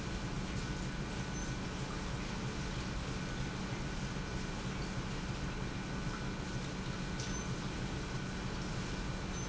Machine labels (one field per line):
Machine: pump